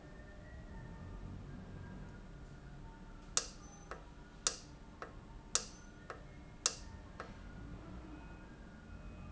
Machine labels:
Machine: valve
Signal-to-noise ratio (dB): 6 dB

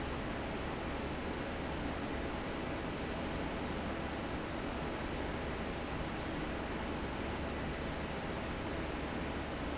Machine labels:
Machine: fan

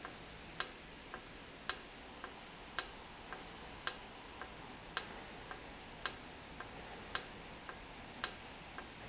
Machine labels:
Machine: valve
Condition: normal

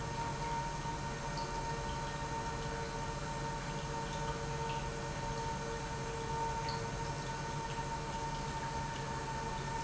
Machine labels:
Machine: pump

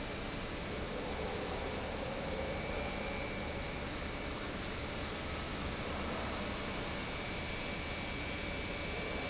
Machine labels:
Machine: pump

